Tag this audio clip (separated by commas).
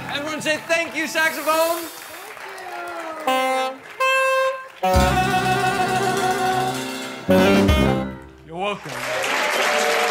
Music, Speech, Jazz